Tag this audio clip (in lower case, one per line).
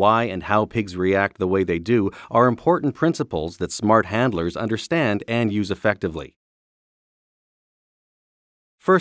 speech